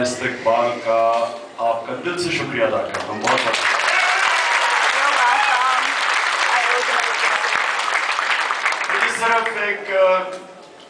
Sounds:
narration, speech, male speech

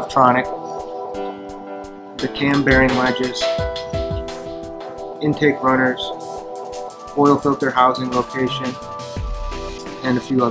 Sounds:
music, speech

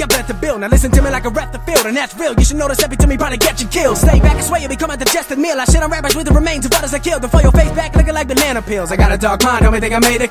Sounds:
rapping

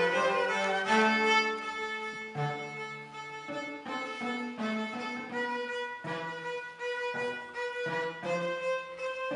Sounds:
music, cello, bowed string instrument, playing cello, violin, musical instrument

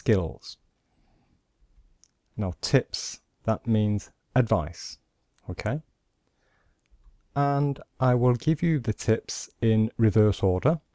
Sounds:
speech, speech synthesizer

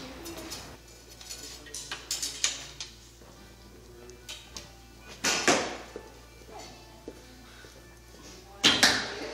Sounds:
inside a large room or hall

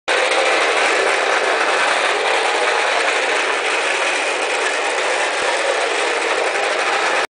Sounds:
vehicle, truck

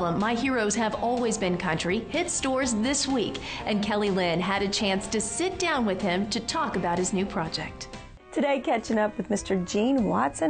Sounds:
music, speech

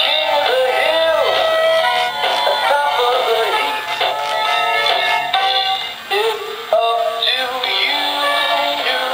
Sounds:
music, synthetic singing

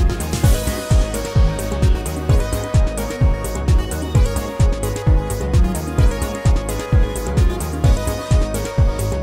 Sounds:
music

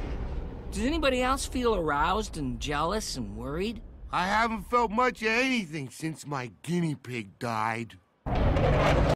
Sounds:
music, speech

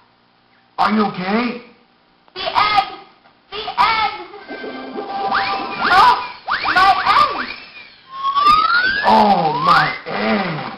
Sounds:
speech, music

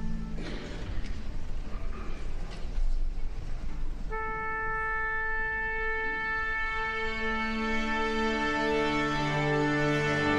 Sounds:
violin, musical instrument, music

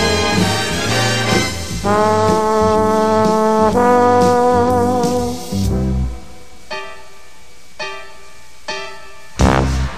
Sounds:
musical instrument, brass instrument, jazz, playing trombone, music, trombone

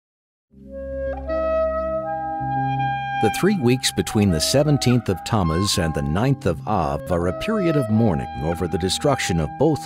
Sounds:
speech, music, flute

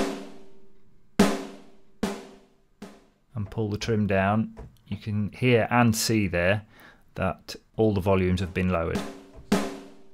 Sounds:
percussion, drum, rimshot, snare drum

